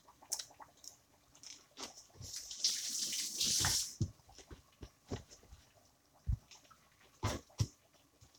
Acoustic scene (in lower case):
kitchen